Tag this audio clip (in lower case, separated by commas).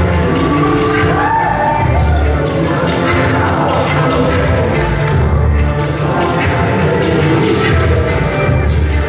music